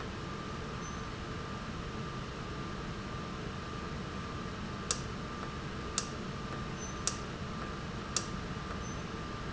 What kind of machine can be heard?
valve